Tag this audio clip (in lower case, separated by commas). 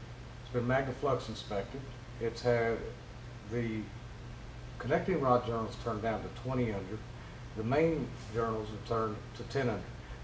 speech